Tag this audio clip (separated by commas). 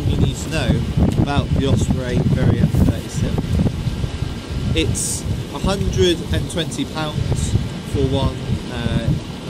outside, rural or natural, Speech